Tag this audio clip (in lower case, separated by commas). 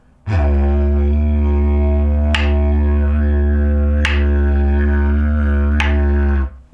music, musical instrument